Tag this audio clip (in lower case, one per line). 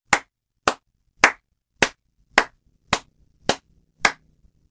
hands
clapping